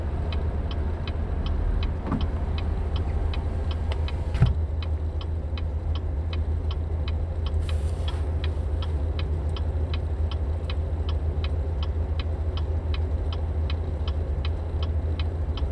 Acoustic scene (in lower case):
car